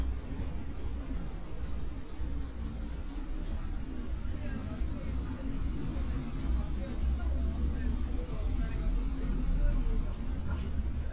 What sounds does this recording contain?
person or small group talking